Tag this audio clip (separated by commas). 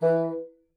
Music, Wind instrument, Musical instrument